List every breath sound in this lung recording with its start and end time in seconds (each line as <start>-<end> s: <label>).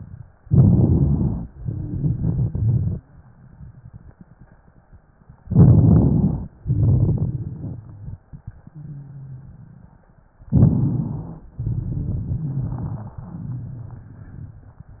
0.42-1.46 s: inhalation
0.42-1.46 s: crackles
1.55-2.99 s: exhalation
1.60-2.02 s: wheeze
2.02-3.03 s: crackles
5.41-6.45 s: crackles
5.44-6.49 s: inhalation
6.61-8.21 s: crackles
6.63-8.21 s: exhalation
10.47-11.51 s: inhalation
10.47-11.51 s: rhonchi
11.54-14.80 s: exhalation
11.54-14.80 s: crackles